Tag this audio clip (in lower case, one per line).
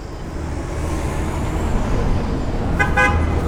car
vehicle
motor vehicle (road)
car passing by